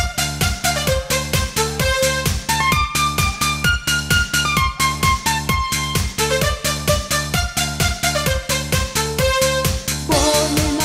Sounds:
Techno, Electronic music, Music

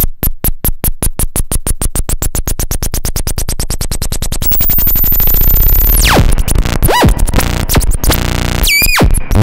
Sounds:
Music, Synthesizer

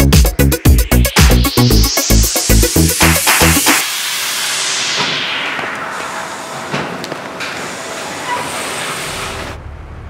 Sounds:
Music, inside a large room or hall

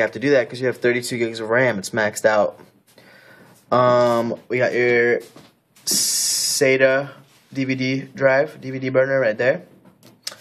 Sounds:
Speech

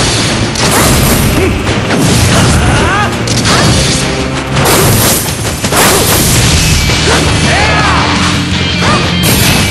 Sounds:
Music, Smash

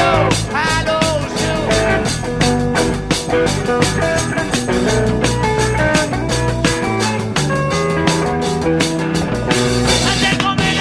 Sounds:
Music

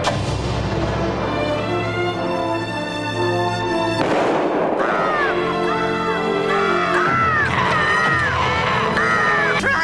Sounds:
Music, Animal, Speech

